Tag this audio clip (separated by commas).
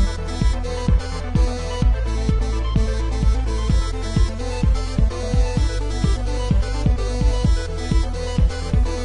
Music